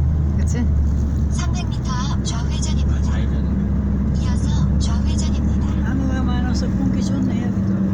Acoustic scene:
car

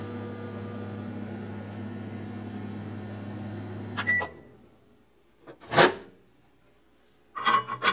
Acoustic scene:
kitchen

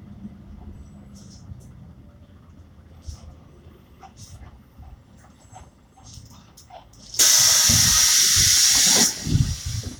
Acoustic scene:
bus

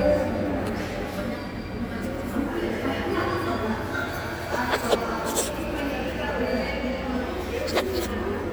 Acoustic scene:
subway station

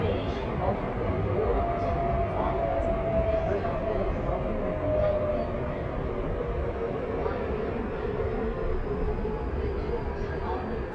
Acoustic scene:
subway train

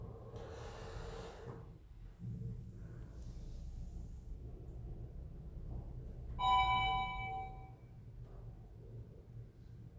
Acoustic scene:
elevator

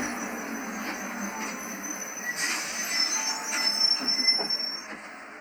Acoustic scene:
bus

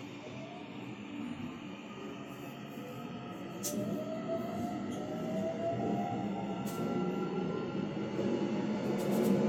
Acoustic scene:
subway train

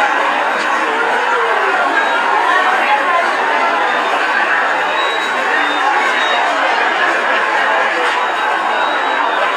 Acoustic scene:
subway station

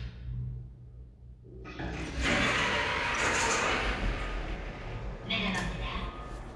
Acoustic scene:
elevator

